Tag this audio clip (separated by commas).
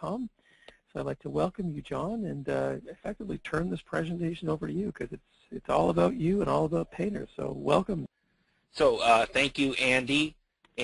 Speech